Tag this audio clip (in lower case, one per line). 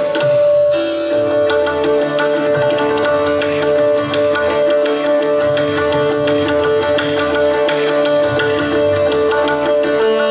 music
sitar